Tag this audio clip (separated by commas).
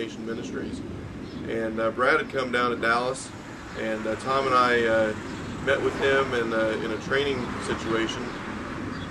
Speech